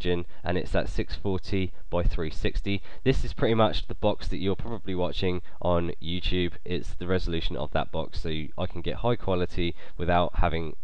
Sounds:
speech

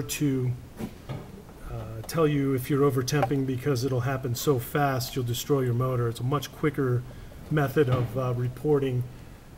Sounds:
speech

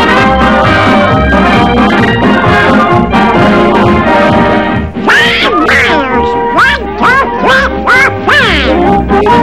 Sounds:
speech, quack, music

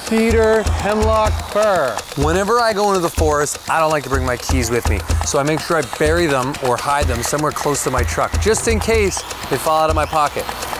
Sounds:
speech, music

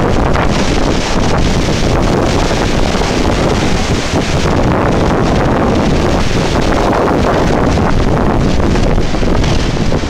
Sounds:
wind, wind noise (microphone)

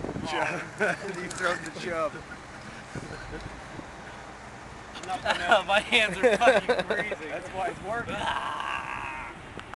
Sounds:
speech

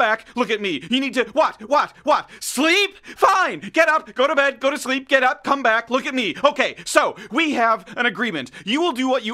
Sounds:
speech

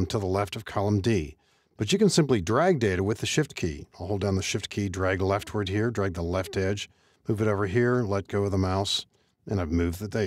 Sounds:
speech

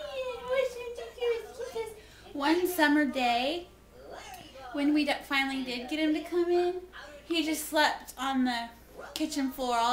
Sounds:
speech

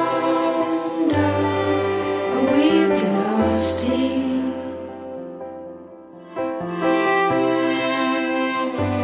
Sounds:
music

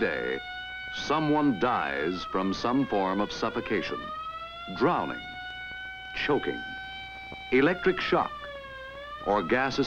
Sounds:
speech

